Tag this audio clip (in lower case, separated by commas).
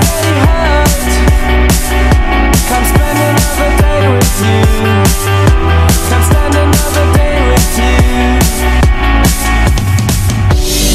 electronic music, music, dubstep